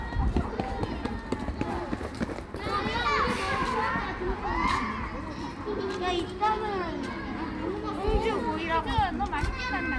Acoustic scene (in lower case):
park